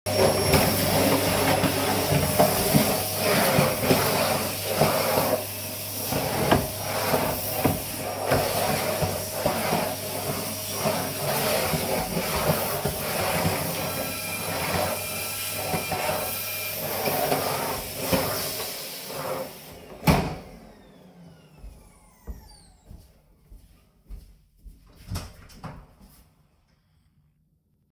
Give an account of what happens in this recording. I was vacuumcleaning. The doorbell rang. I went to the door and opened it.